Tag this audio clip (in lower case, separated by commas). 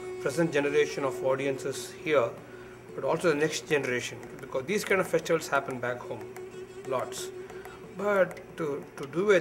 classical music, music, speech